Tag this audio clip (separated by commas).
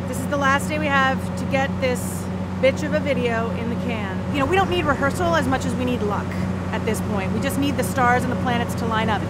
Speech